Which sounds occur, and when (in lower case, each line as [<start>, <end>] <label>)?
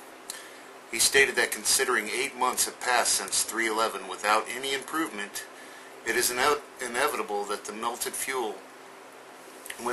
[0.00, 9.92] mechanisms
[0.30, 0.69] breathing
[0.95, 2.70] man speaking
[2.52, 2.69] generic impact sounds
[2.82, 5.43] man speaking
[3.27, 3.38] generic impact sounds
[5.55, 5.95] breathing
[6.05, 6.66] man speaking
[6.83, 8.62] man speaking
[9.67, 9.81] tick
[9.74, 9.92] man speaking